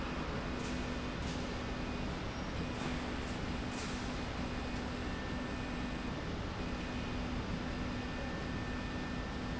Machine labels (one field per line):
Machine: slide rail